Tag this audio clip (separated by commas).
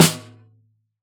Drum, Music, Snare drum, Percussion, Musical instrument